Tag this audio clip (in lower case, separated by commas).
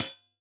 music, cymbal, musical instrument, hi-hat, percussion